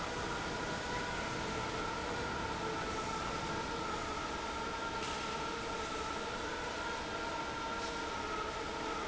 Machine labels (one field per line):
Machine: fan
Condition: normal